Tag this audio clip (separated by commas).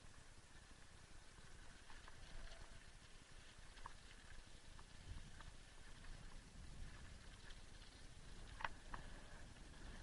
Vehicle, Bicycle